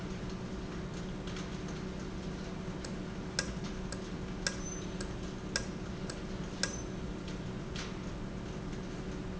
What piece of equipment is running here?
valve